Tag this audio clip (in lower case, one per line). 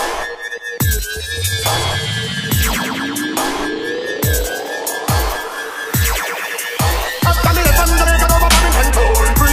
hip hop music
electronic music
reggae
dubstep
music